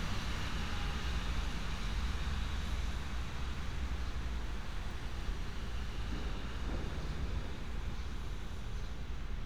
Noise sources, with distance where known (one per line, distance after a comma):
engine of unclear size